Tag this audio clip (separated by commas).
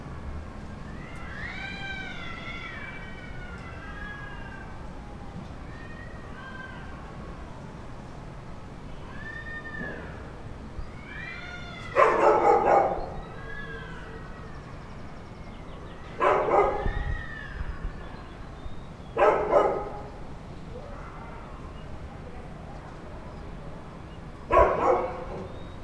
pets, Cat, Dog, Animal